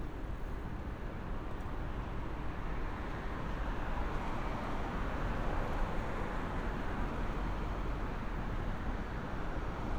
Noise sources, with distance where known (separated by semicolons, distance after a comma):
engine of unclear size